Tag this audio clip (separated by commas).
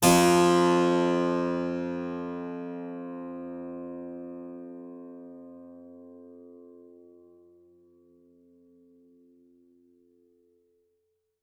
Musical instrument, Keyboard (musical), Music